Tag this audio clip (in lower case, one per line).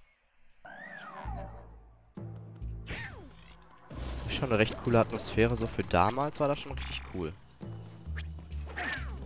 speech